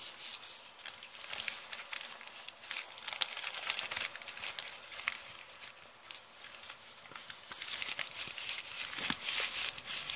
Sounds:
ripping paper

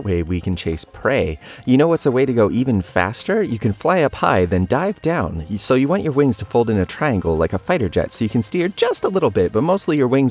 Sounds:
bird wings flapping

